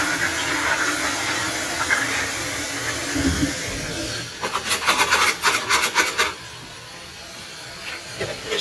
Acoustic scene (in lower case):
kitchen